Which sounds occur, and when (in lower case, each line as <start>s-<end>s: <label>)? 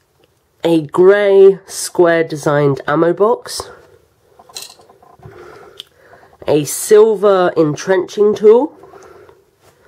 0.0s-9.8s: mechanisms
0.1s-0.3s: generic impact sounds
0.6s-3.8s: man speaking
3.5s-3.6s: generic impact sounds
3.6s-4.0s: breathing
4.2s-5.7s: generic impact sounds
5.2s-5.7s: breathing
5.7s-5.8s: tick
5.9s-6.4s: breathing
6.0s-6.4s: generic impact sounds
6.4s-8.6s: man speaking
7.6s-7.8s: generic impact sounds
8.7s-9.3s: generic impact sounds
8.7s-9.3s: breathing
8.9s-9.1s: tick
9.6s-9.8s: surface contact
9.7s-9.8s: breathing